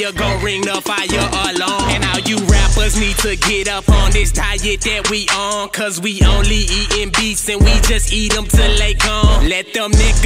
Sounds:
music

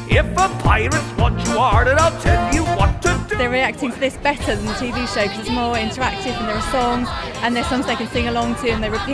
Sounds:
music
speech

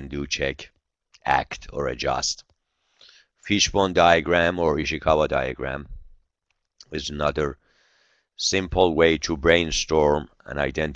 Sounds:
speech

